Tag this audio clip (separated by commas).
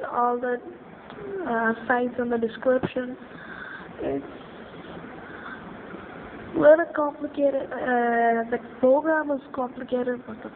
Speech